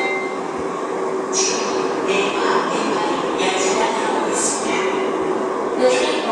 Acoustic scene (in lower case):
subway station